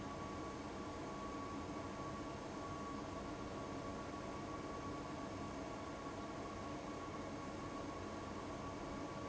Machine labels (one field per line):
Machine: fan